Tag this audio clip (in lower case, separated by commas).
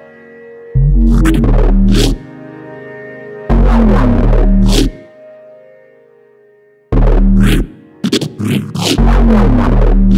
electronic music, music